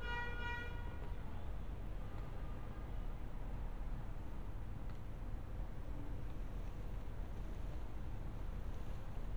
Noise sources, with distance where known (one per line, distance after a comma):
car horn